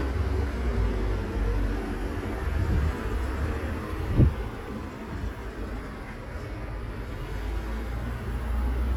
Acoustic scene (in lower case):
street